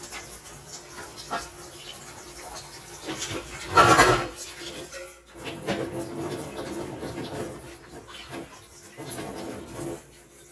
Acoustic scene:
kitchen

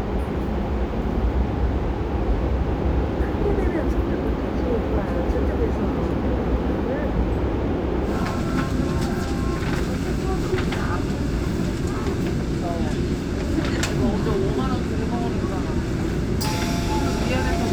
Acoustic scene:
subway train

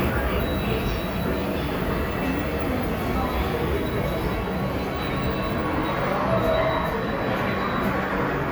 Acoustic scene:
subway station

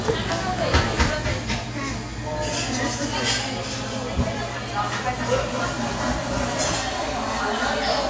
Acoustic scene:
cafe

